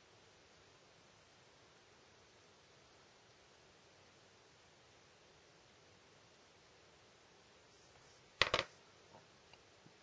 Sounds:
Silence, inside a small room

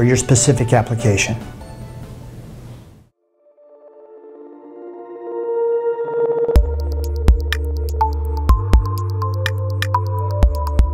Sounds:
Speech, Music

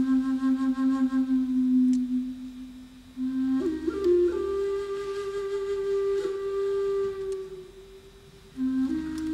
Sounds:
Wind instrument

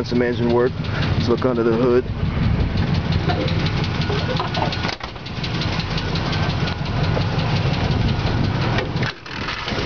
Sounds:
Speech, Vehicle, Car, Engine

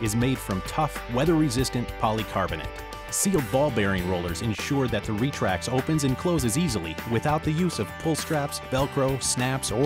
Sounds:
Music, Speech

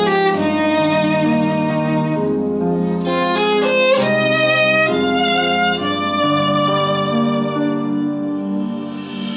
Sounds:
Music, fiddle, Musical instrument

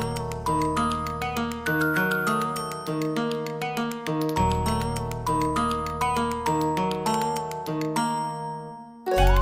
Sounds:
New-age music, Music

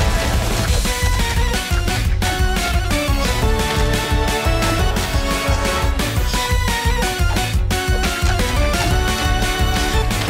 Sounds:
Music

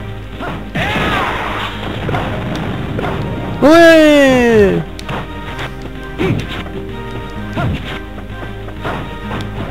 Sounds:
Whack

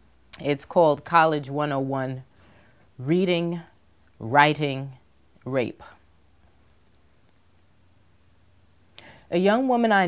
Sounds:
Speech

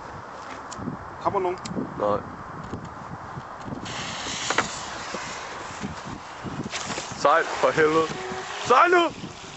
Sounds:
Speech

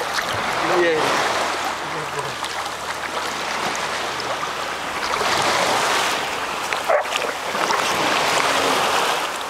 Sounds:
pets, Ocean, ocean burbling, Speech, Dog, Animal

